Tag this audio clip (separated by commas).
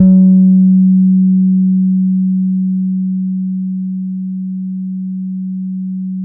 Guitar, Musical instrument, Bass guitar, Music, Plucked string instrument